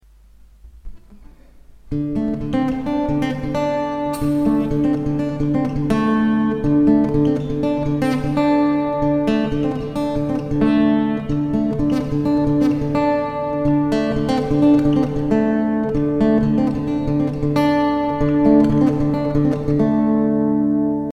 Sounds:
guitar, plucked string instrument, musical instrument, music

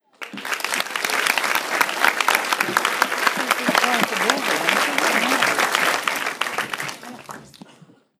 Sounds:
applause, human group actions

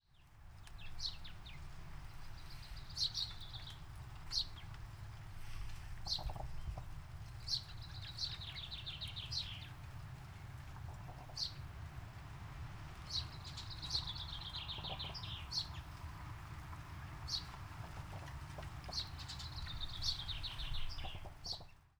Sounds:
animal, bird, bird call, wild animals

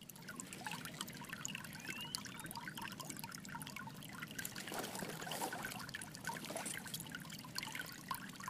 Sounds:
tweet, walk, water, bird call, animal, stream, liquid, dribble, bird, pour, wild animals

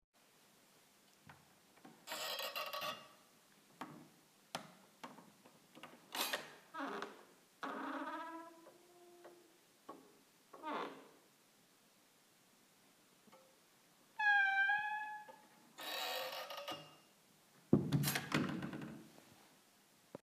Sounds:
squeak

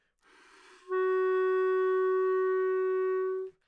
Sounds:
music, wind instrument, musical instrument

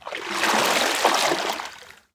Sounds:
water, splatter, liquid

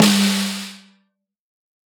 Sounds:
musical instrument, percussion, music, snare drum, drum

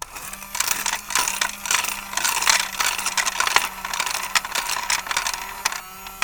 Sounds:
coin (dropping), domestic sounds

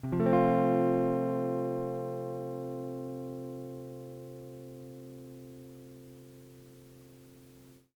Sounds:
music, guitar, plucked string instrument, musical instrument

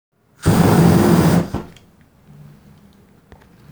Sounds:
fire

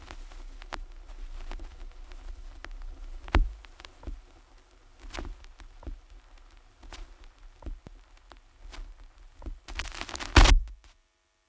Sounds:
crackle

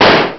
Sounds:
gunshot, explosion

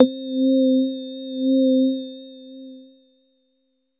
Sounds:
keyboard (musical), musical instrument, music

